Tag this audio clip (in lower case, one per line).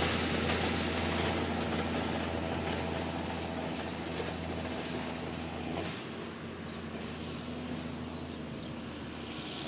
vehicle